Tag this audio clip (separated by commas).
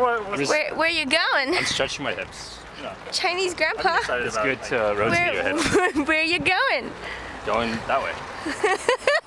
Speech